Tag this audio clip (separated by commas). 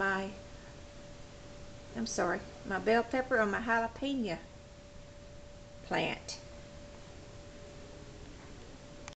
Speech